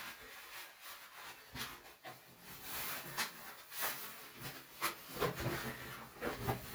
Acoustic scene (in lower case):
restroom